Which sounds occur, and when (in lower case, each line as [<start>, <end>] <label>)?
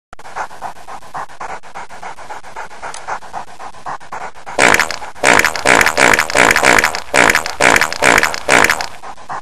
[0.10, 9.41] background noise
[0.11, 9.41] pant (dog)
[2.90, 3.04] tick
[4.58, 5.00] fart
[5.26, 6.96] fart
[7.19, 8.35] fart
[8.48, 8.87] fart